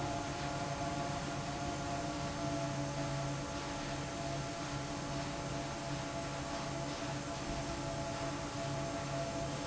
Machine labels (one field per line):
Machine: fan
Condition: normal